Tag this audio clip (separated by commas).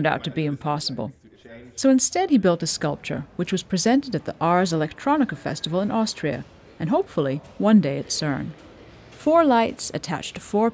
Speech